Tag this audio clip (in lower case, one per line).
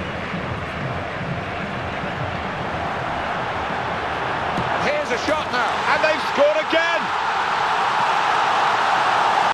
speech